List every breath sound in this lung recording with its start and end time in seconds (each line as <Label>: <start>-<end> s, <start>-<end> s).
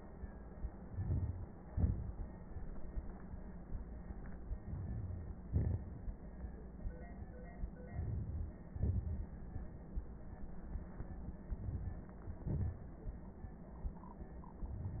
Inhalation: 0.64-1.63 s, 4.43-5.43 s, 7.75-8.64 s, 11.42-12.22 s
Exhalation: 1.61-3.23 s, 5.43-6.72 s, 8.68-9.86 s, 12.22-13.36 s
Wheeze: 4.43-5.43 s
Crackles: 0.64-1.63 s, 5.43-6.72 s, 7.75-8.64 s, 8.68-9.86 s, 11.42-12.22 s, 12.22-13.36 s